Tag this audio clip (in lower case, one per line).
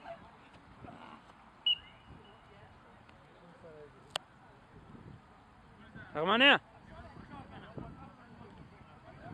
tweet